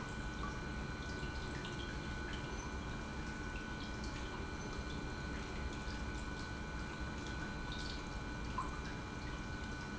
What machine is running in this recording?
pump